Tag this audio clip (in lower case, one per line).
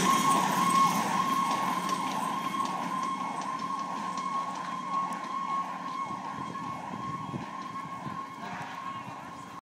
truck
fire engine
emergency vehicle
vehicle